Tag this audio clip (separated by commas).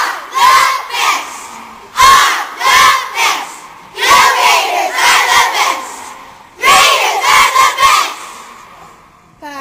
Speech